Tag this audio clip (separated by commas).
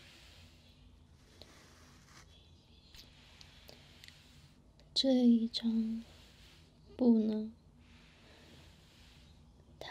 Speech